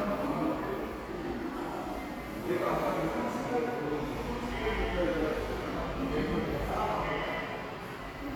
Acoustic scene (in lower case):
subway station